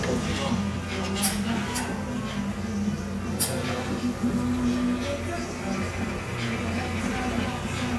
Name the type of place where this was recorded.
cafe